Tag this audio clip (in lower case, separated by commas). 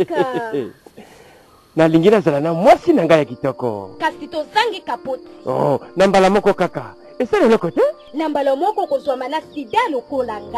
speech, music